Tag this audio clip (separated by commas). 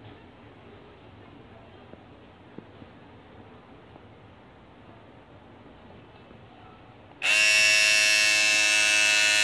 electric shaver